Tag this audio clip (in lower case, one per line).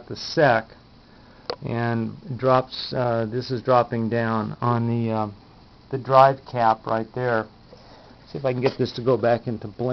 speech